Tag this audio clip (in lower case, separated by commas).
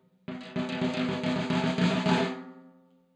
percussion, drum, musical instrument, snare drum, music